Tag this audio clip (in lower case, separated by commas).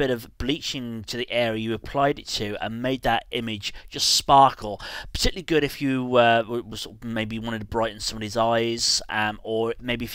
speech